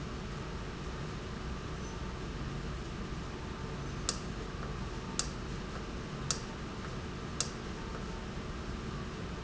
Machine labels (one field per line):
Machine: valve